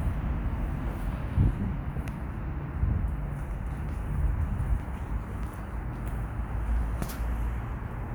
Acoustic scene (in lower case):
residential area